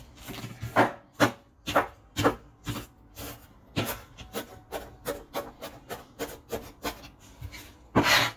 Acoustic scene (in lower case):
kitchen